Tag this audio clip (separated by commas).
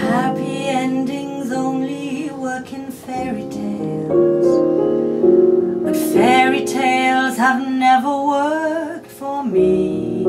Music